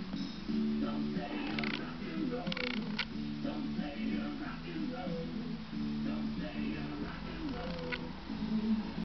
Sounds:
Music

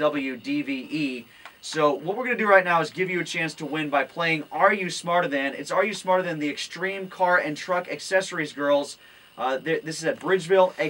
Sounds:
Speech

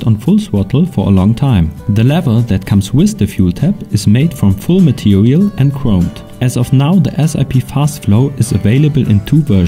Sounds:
Speech, Music

